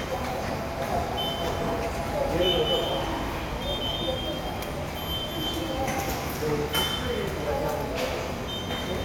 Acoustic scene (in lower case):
subway station